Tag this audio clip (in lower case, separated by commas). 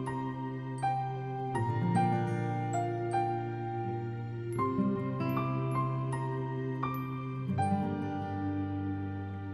music